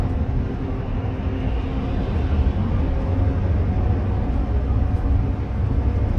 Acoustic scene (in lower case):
car